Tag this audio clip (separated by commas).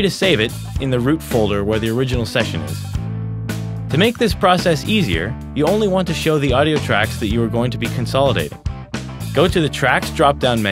Music, Speech